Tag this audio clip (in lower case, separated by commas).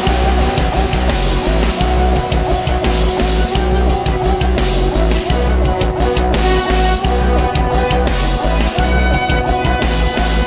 music